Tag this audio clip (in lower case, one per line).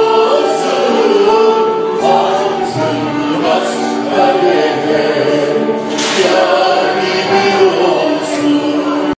female singing
music
male singing
choir